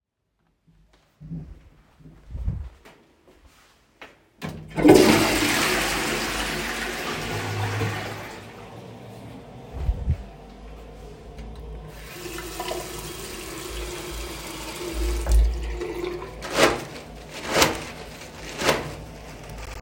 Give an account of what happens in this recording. I walked into the toilet, flushed the toilet, turned on the tap then took the tissue paper